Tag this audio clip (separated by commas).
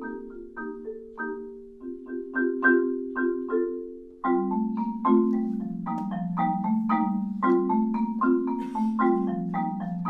Music